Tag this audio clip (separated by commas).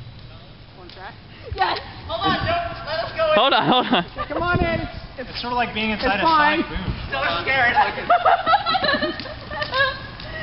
inside a large room or hall, Speech